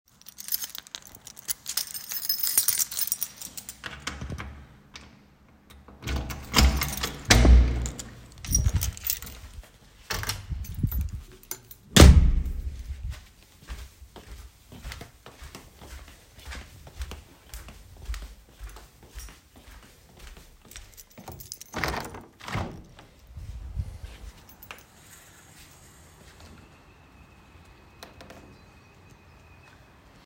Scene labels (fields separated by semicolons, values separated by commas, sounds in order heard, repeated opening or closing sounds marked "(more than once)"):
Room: hallway, living room; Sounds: keys, door (more than once), footsteps, window